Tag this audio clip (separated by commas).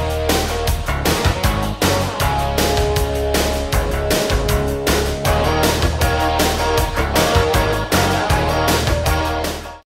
Music